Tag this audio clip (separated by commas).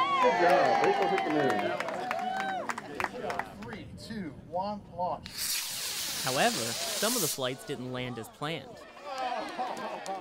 Speech